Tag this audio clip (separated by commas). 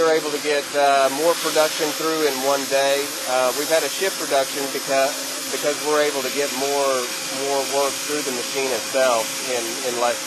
Speech